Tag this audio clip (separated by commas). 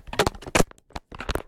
Alarm, Telephone